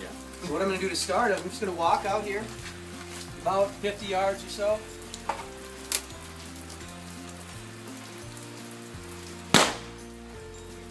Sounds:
speech
music

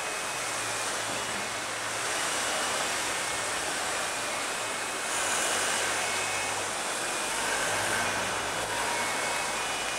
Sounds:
rain

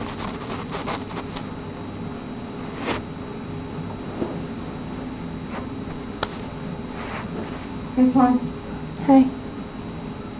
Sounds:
speech

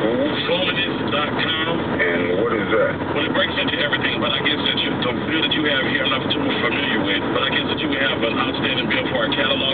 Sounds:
speech

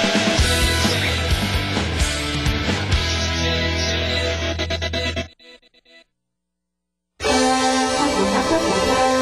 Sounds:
radio
music

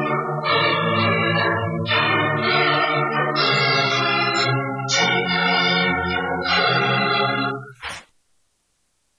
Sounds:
music

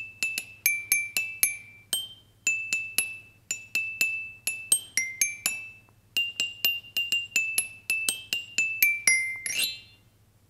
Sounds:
playing glockenspiel

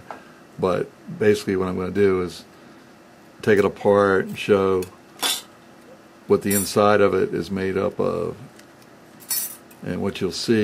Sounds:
speech

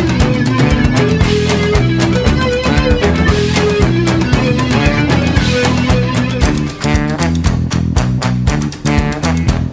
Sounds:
music

